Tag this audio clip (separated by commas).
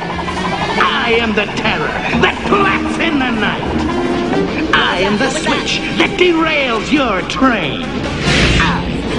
Speech, Music